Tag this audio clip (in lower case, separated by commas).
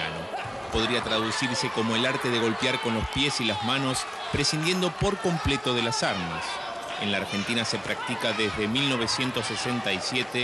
speech